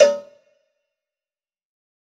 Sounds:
cowbell
bell

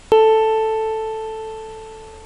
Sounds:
piano
music
keyboard (musical)
musical instrument

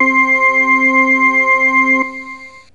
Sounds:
keyboard (musical)
musical instrument
music

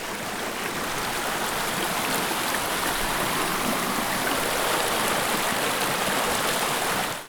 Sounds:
stream
water
ocean

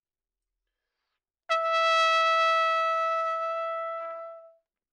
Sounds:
brass instrument
musical instrument
trumpet
music

